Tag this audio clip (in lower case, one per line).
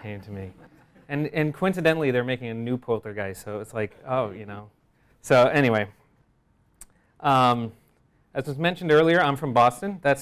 speech